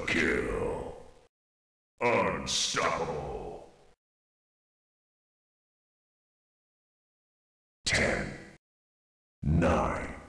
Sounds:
speech

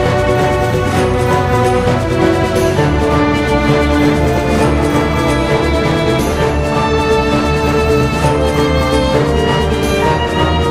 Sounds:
exciting music, music

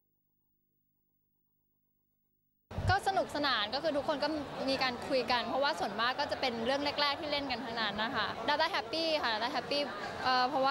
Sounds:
inside a public space, speech

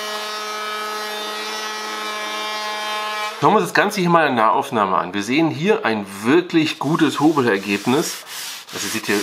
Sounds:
planing timber

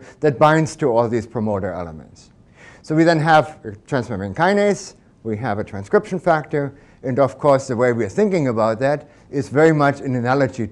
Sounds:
speech

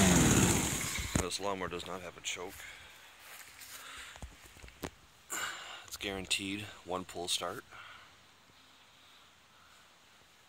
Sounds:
vehicle, speech

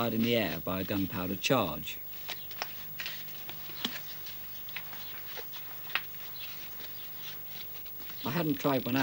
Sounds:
speech

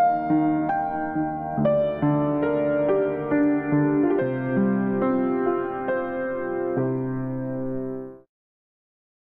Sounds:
music

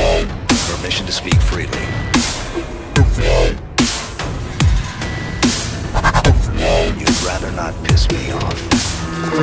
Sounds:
speech, music, electronic dance music

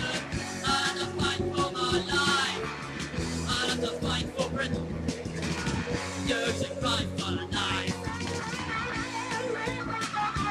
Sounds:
music, punk rock, rock music

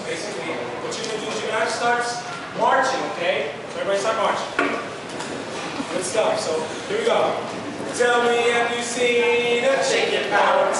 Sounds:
speech

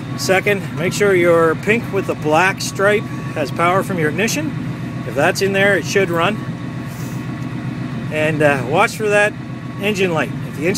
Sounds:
engine, outside, rural or natural, vehicle, speech

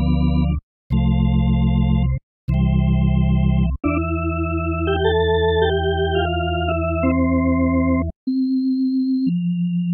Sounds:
playing electronic organ

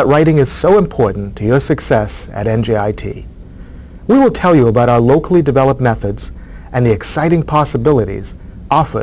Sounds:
speech

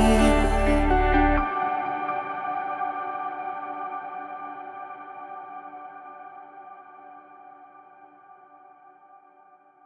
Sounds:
ambient music

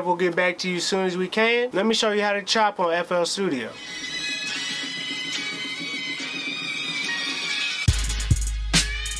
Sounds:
music, speech

